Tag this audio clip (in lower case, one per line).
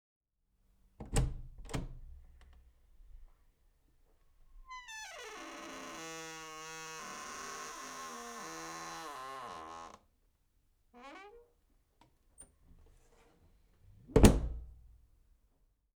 slam
domestic sounds
door